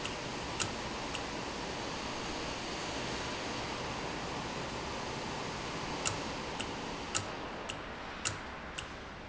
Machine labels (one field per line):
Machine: valve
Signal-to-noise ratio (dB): -6 dB